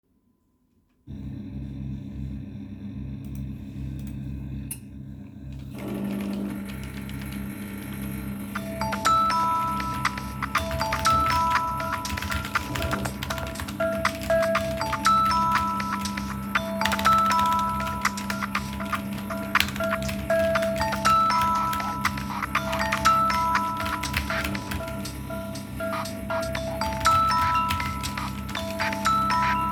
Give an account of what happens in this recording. I started to make a coffee, while waiting I started searching for the latest news online. Then my friend called me.